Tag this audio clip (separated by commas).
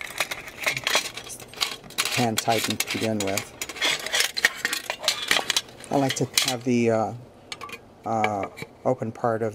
Speech